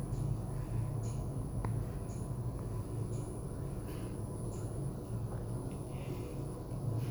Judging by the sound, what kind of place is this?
elevator